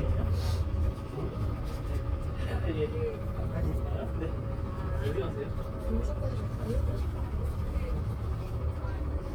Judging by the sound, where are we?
on a bus